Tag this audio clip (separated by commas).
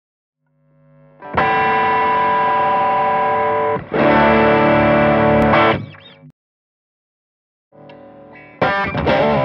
Bass guitar, Musical instrument, Distortion, Plucked string instrument, Guitar, Music, Electric guitar